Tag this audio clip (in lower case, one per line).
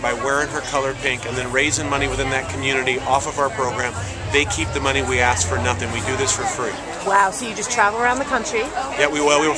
speech